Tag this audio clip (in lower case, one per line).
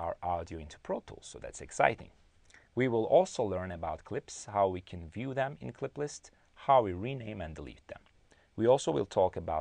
speech